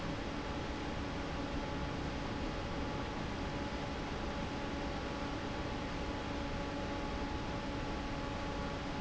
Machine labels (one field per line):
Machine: fan